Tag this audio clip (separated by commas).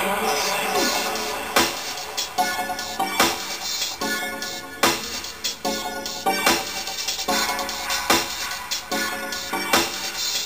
Electronic music, Music